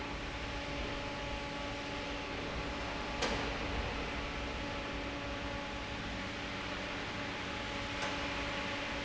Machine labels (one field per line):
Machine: fan